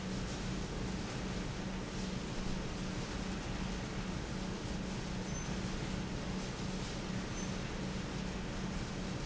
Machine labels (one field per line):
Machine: pump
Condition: normal